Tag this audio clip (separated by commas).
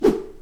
swoosh